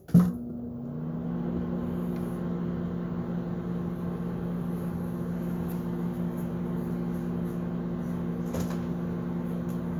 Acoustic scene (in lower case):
kitchen